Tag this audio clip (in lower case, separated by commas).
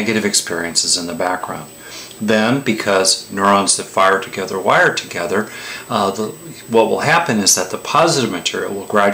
speech